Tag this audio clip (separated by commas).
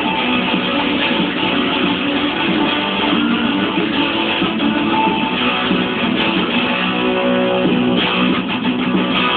Music, Musical instrument, Guitar, Plucked string instrument